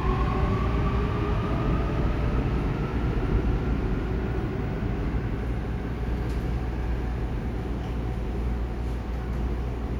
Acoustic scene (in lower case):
subway station